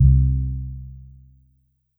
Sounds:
Keyboard (musical), Piano, Music, Musical instrument

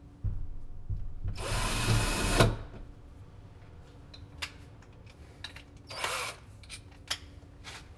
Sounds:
Tools

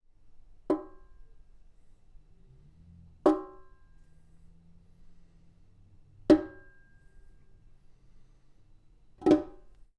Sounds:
Sink (filling or washing), Domestic sounds

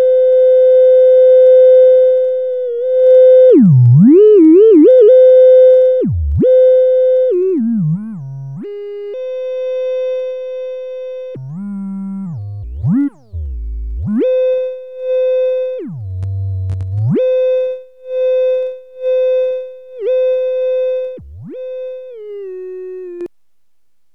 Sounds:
Musical instrument, Music

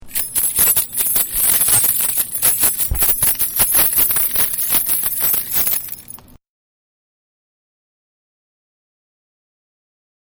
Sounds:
home sounds, Keys jangling

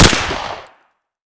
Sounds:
Explosion, Gunshot

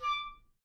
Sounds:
woodwind instrument, Musical instrument, Music

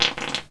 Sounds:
Fart

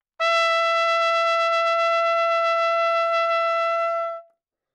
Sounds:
Musical instrument, Music, Trumpet, Brass instrument

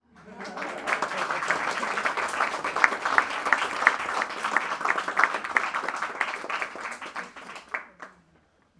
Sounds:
Human group actions, Applause

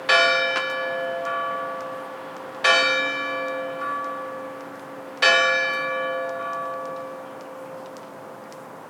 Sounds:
Church bell, Bell

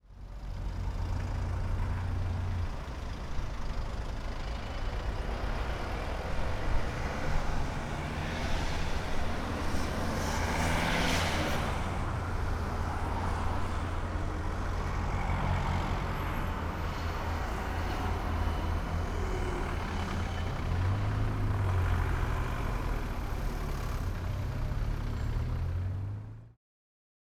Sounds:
Vehicle

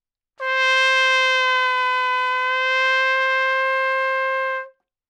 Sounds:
Brass instrument, Trumpet, Music, Musical instrument

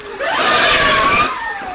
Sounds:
Engine, Accelerating

